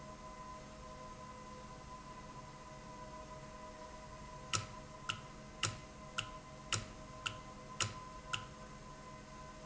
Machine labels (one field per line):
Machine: valve